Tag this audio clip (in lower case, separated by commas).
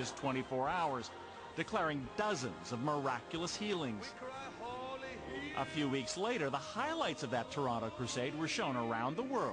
speech, music